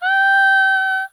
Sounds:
singing, female singing, human voice

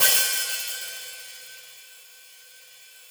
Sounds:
music, cymbal, percussion, musical instrument, hi-hat

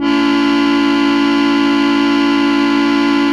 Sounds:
keyboard (musical), organ, musical instrument, music

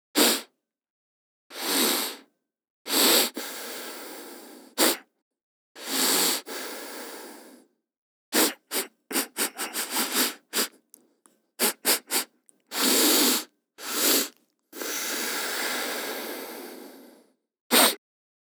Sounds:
respiratory sounds, breathing

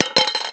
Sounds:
domestic sounds, coin (dropping)

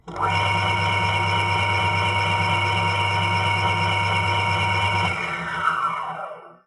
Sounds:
engine, tools

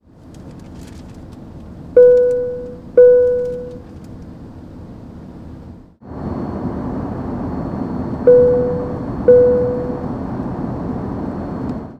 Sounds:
fixed-wing aircraft, aircraft, vehicle

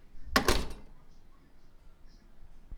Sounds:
home sounds, slam, door

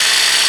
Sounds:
tools

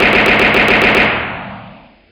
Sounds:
explosion, gunfire

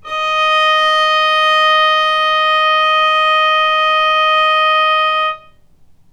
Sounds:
musical instrument, bowed string instrument, music

